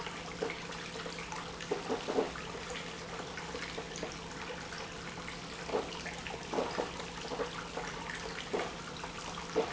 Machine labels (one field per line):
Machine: pump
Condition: abnormal